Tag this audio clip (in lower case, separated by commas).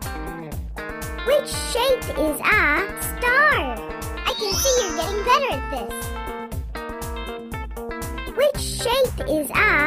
music, speech